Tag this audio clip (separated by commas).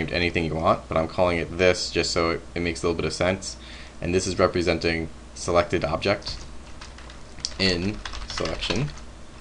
Typing